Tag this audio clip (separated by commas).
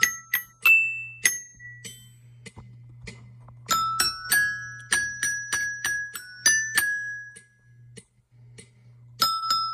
playing glockenspiel